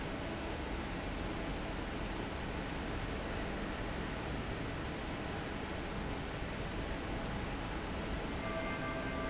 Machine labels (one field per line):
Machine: fan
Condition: normal